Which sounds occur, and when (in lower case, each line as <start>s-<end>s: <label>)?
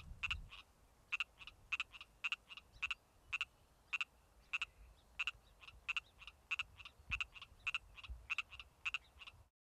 0.0s-9.5s: rustle
0.0s-0.5s: wind noise (microphone)
9.0s-9.1s: chirp
9.1s-9.3s: croak